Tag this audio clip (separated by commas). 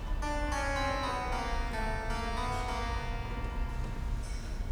Music, Musical instrument, Keyboard (musical)